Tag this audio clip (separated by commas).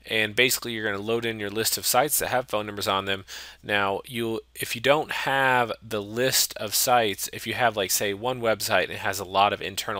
Speech